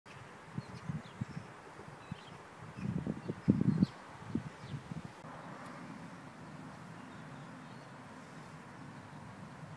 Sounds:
magpie calling

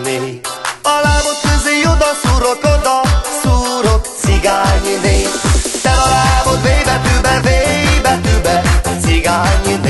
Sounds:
Electronic music, Music, Techno

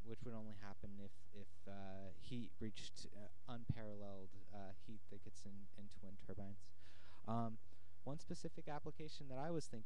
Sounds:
Speech

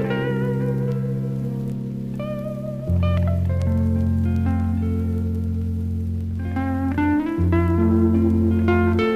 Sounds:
Plucked string instrument, Music

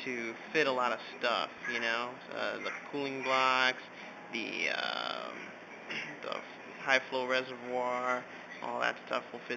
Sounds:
Speech

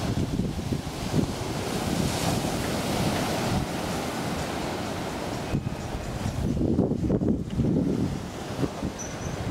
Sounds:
Ocean, Wind noise (microphone), ocean burbling, Wind, Waves

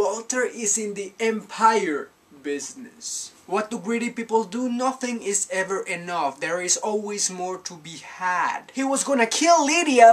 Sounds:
Speech

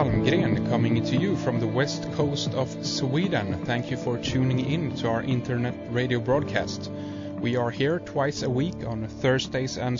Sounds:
Music, Speech

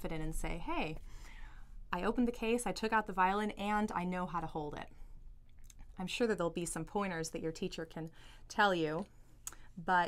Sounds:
Speech

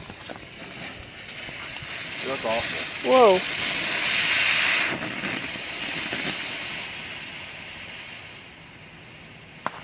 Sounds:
Speech

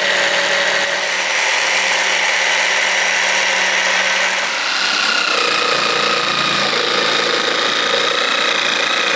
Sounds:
Tools, Power tool

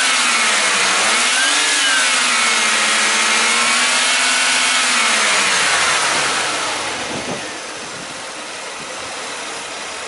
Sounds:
Vehicle, Engine

